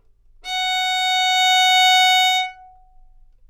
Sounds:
musical instrument
bowed string instrument
music

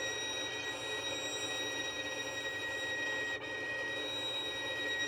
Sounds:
musical instrument
music
bowed string instrument

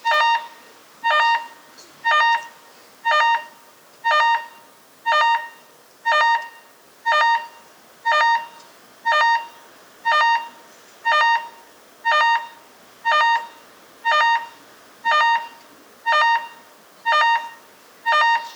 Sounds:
alarm

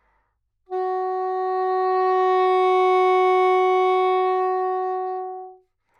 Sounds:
musical instrument
woodwind instrument
music

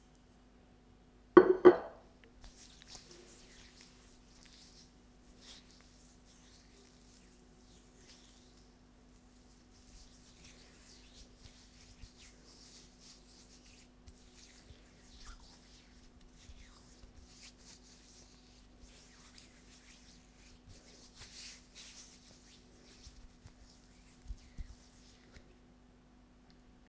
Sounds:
hands

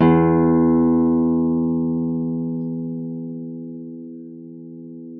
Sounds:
plucked string instrument
music
acoustic guitar
guitar
musical instrument

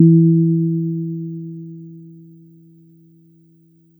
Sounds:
keyboard (musical)
music
piano
musical instrument

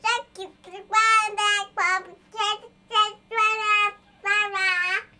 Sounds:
human voice
speech

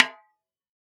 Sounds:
music
drum
snare drum
percussion
musical instrument

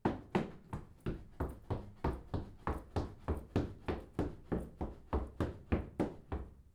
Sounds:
run

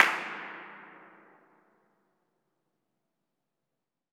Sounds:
clapping
hands

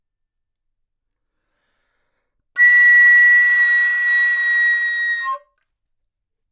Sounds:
music
wind instrument
musical instrument

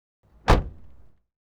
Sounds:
motor vehicle (road)
vehicle
car

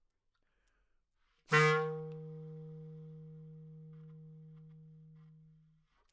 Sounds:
music
musical instrument
wind instrument

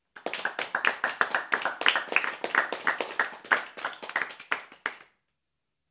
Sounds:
clapping
human group actions
hands
applause

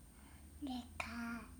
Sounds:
child speech
speech
human voice

